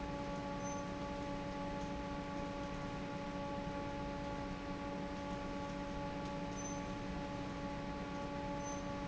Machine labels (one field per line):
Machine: fan